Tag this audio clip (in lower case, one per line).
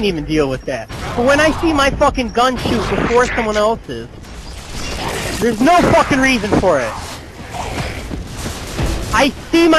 speech